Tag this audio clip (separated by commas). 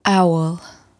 Human voice, Female speech, Speech